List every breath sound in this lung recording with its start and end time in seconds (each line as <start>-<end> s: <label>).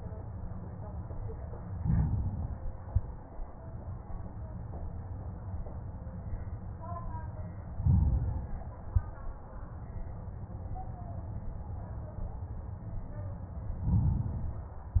1.75-2.85 s: inhalation
2.85-3.44 s: exhalation
7.75-8.76 s: inhalation
8.76-9.38 s: exhalation
13.81-15.00 s: inhalation